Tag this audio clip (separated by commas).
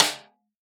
Percussion, Music, Drum, Snare drum, Musical instrument